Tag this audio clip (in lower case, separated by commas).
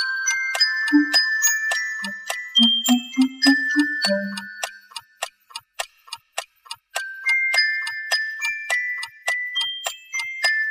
music, tick-tock